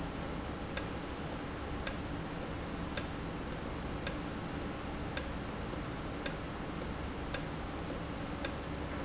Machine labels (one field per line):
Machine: valve